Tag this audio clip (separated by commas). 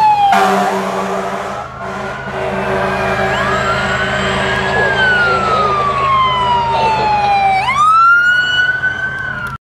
Car, Speech, Vehicle